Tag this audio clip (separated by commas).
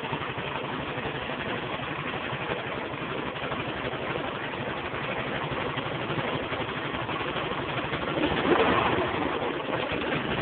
Gurgling